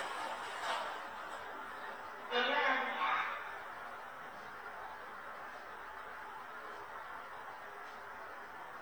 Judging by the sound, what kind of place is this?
elevator